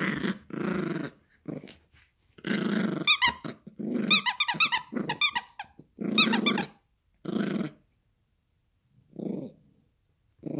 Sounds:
dog growling

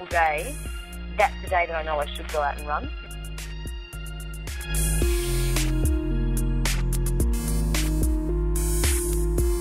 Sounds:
speech
music

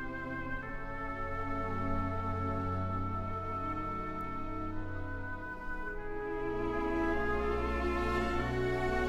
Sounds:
playing oboe

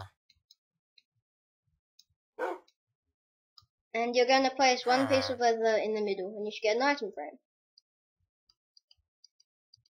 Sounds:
speech

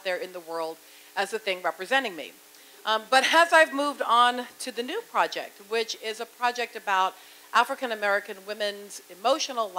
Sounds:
speech

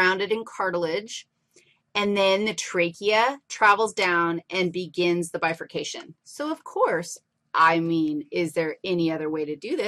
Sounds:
speech

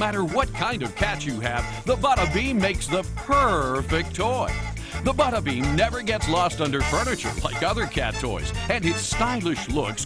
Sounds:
speech
music

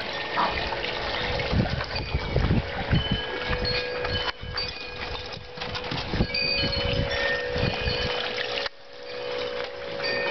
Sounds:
animal
music
dog

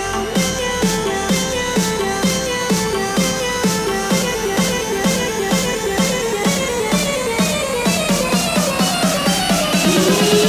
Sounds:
music

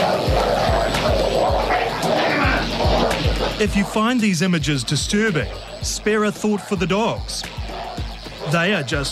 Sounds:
music
yip
speech

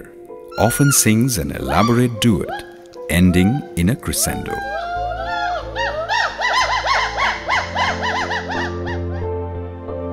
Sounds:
gibbon howling

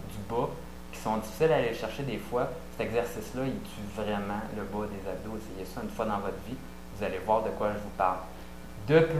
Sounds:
speech

